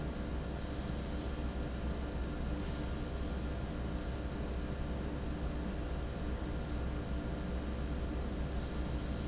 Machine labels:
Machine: fan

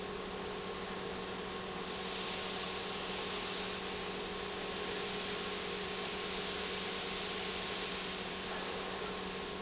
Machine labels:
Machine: pump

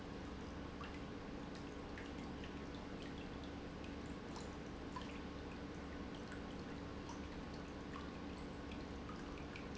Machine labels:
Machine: pump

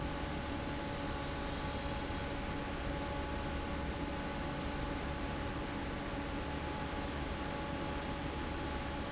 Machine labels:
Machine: fan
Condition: normal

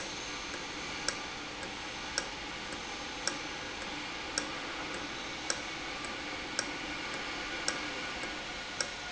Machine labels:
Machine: valve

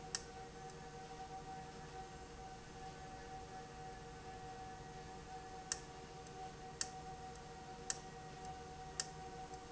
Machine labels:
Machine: valve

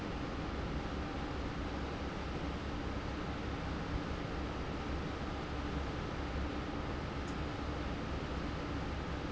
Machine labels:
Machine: fan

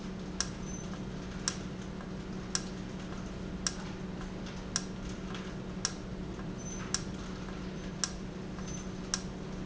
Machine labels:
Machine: valve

